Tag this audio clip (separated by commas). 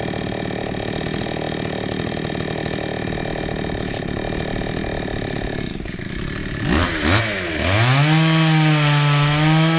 chainsawing trees